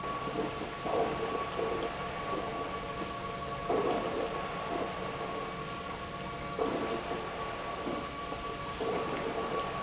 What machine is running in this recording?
pump